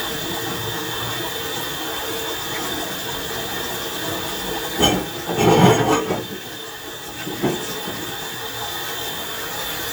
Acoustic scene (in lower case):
kitchen